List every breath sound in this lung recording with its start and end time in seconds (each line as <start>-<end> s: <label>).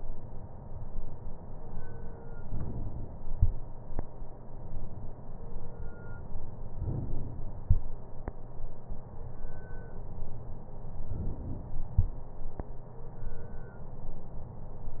6.73-7.65 s: inhalation
11.12-12.04 s: inhalation